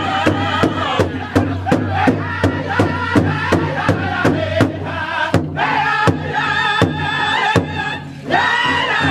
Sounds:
music

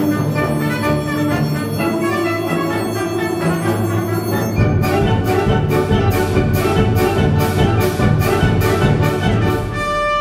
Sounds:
orchestra
french horn
musical instrument
classical music
bowed string instrument
music

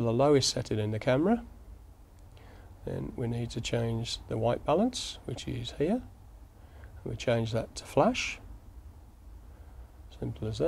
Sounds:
speech

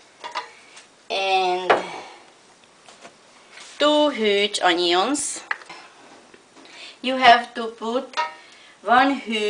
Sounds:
speech

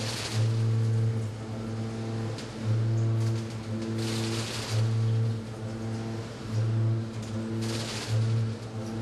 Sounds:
tools

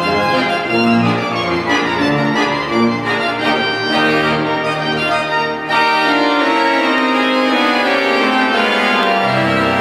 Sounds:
music
piano
musical instrument
keyboard (musical)

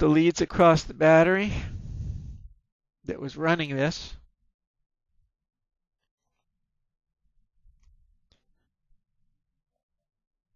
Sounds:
speech

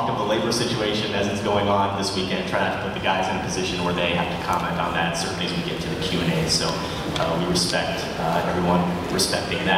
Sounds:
speech

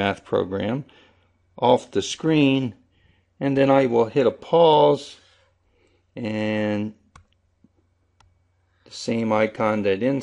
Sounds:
speech
inside a small room

